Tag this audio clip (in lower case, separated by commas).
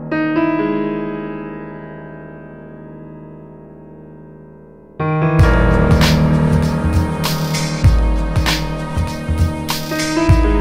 music, electric piano